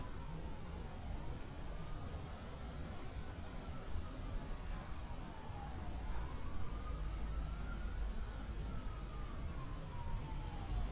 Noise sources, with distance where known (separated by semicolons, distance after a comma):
siren, far